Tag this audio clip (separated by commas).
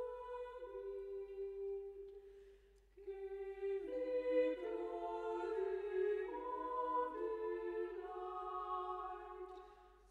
Music